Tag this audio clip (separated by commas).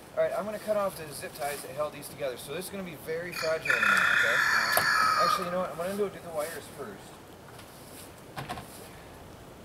Fowl